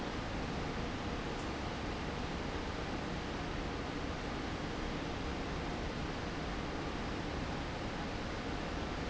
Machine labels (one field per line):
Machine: fan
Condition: abnormal